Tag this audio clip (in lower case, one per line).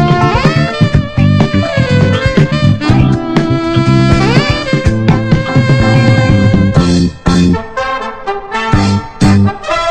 music
brass instrument
funk